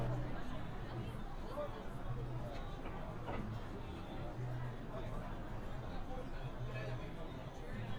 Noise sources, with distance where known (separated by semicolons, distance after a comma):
person or small group talking, far